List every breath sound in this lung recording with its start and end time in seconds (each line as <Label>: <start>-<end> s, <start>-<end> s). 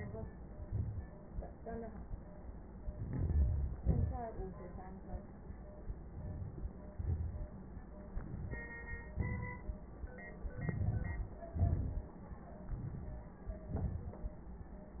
Inhalation: 2.90-3.76 s, 6.09-6.72 s, 8.16-8.69 s, 10.59-11.39 s, 12.71-13.34 s
Exhalation: 3.78-4.29 s, 6.93-7.50 s, 9.18-9.75 s, 11.59-12.14 s, 13.72-14.25 s